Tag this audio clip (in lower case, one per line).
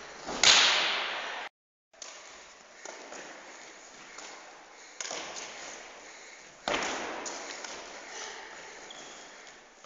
run